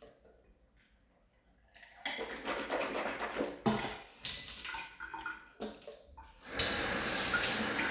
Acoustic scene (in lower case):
restroom